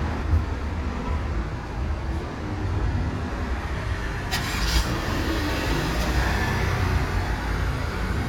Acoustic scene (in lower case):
residential area